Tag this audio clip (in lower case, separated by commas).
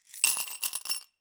glass, coin (dropping), home sounds